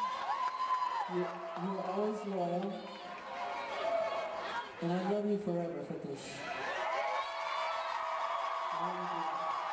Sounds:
man speaking, Speech

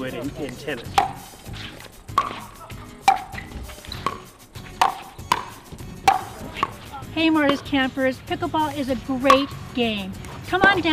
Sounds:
playing badminton

